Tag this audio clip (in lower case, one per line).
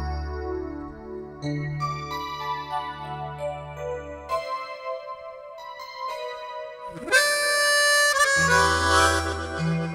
playing harmonica